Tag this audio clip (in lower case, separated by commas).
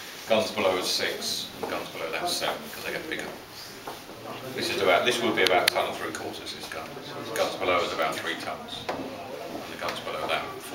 speech